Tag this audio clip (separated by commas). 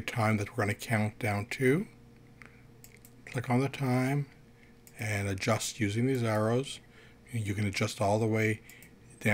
Speech